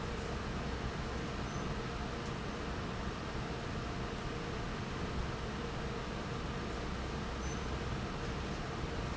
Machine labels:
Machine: fan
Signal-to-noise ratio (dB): -6 dB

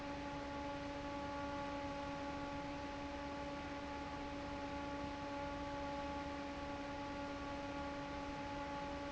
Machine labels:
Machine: fan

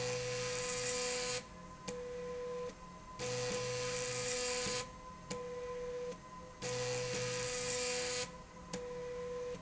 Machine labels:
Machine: slide rail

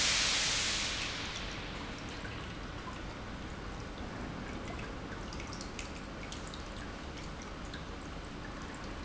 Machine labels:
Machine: pump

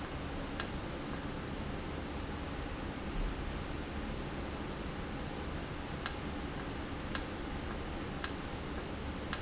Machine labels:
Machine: valve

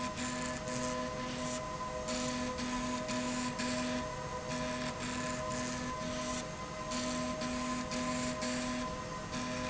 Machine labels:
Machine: slide rail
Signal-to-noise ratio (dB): -6 dB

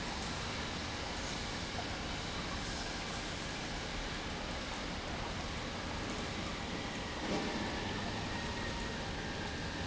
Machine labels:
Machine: pump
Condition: normal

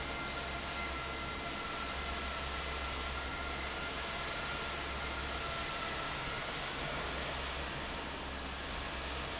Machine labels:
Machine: fan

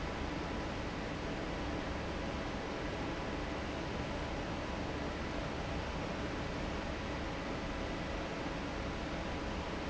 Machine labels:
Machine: fan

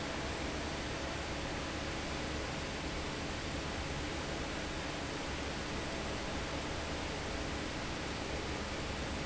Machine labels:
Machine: fan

